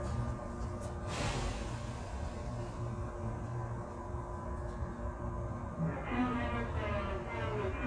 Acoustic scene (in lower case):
subway train